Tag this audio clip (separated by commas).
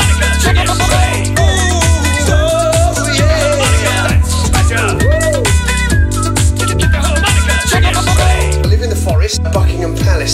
Music